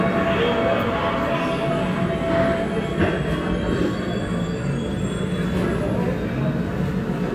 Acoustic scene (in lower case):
subway station